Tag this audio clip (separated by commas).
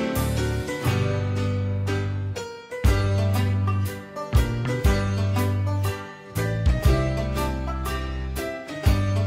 Music